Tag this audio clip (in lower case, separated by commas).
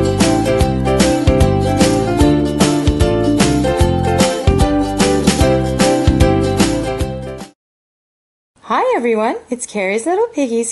speech, music